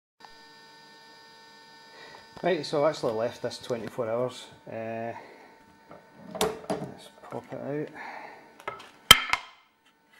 Speech followed by a clink